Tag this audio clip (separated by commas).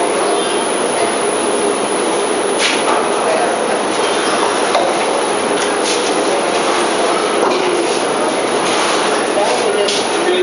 Speech